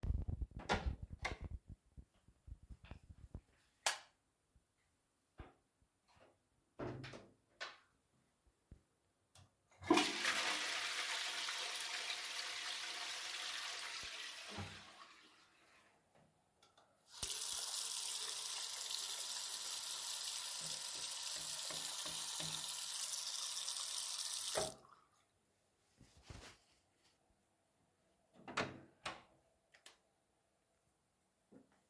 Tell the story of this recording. I open the bathroom door, and then flipped the light switch. After flushing the toilet, I walked to the sink and turned on the running water to wash my hands with soap. Then I got out and closed the door.